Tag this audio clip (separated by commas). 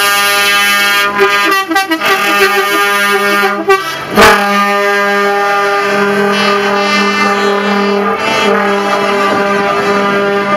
Vehicle